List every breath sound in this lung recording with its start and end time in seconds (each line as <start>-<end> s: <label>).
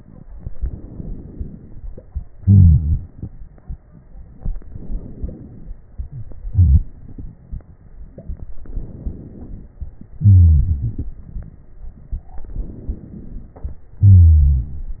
0.48-1.98 s: inhalation
2.40-4.23 s: exhalation
4.62-5.86 s: inhalation
5.95-7.84 s: exhalation
8.60-9.78 s: inhalation
10.17-11.22 s: exhalation
10.17-11.22 s: wheeze
12.47-13.72 s: inhalation
14.02-15.00 s: exhalation
14.02-15.00 s: wheeze